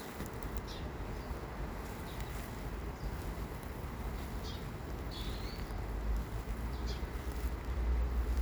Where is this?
in a park